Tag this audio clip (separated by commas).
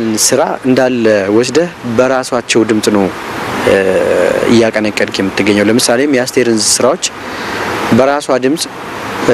Speech